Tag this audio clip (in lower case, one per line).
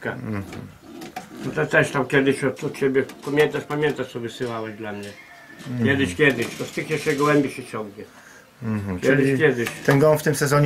inside a small room
speech